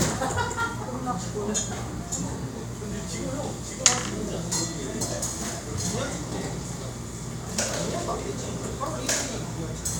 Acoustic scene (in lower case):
cafe